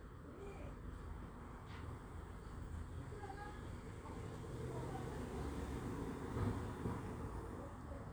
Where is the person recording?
in a residential area